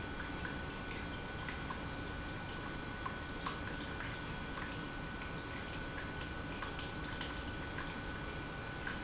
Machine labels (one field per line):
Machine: pump